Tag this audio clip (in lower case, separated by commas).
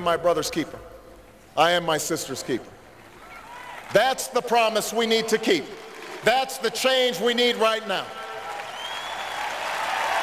monologue, speech, male speech